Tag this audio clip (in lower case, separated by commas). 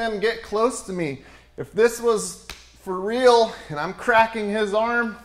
speech